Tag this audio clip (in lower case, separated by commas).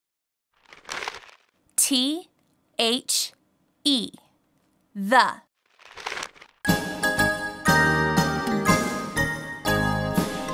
speech, music